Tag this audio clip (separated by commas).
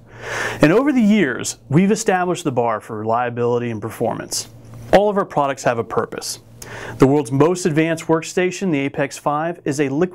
Speech